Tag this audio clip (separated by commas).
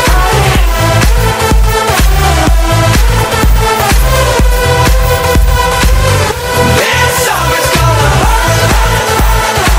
Music